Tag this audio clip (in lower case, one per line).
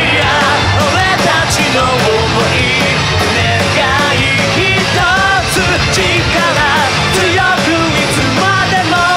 music